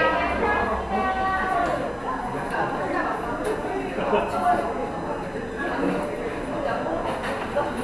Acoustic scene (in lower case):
cafe